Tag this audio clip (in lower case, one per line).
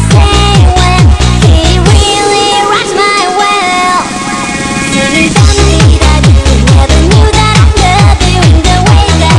music
child singing
male singing